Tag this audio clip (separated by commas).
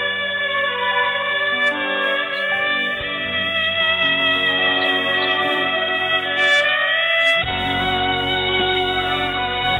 Music, Sad music